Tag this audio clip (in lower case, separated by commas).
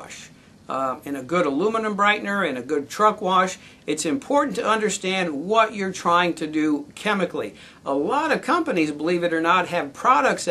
speech